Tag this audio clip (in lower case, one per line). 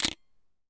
mechanisms
camera